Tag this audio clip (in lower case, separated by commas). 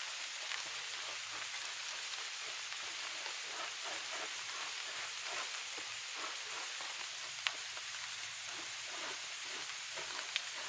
swimming